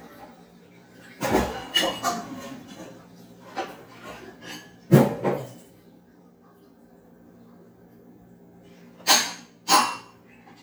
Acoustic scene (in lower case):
kitchen